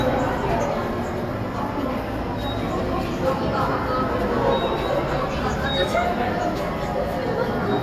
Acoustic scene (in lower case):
subway station